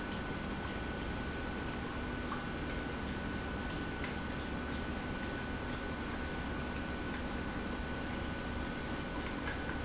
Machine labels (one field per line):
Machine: pump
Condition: normal